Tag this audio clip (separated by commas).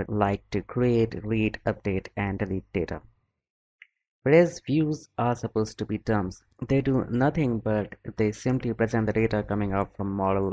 Speech